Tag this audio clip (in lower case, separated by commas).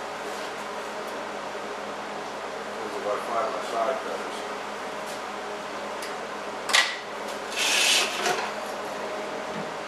speech, inside a large room or hall